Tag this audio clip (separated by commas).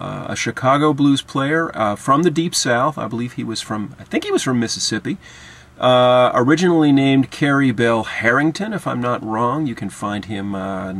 Speech